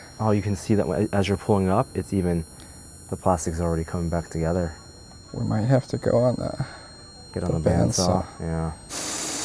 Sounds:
Speech

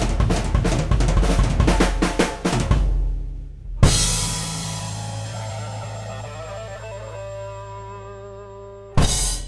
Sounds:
Music, Drum roll

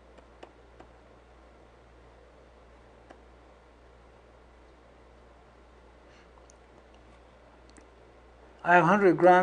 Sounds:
Speech

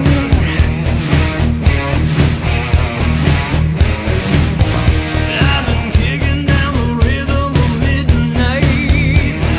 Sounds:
Music

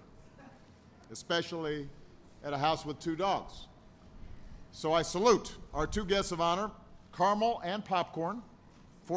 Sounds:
Speech

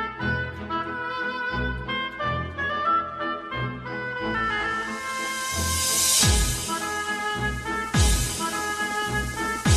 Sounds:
Music, Techno, Electronic music

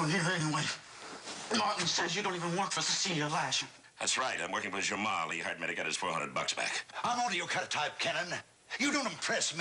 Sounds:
Speech

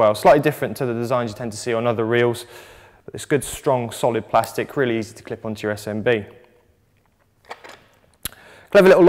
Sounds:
Speech

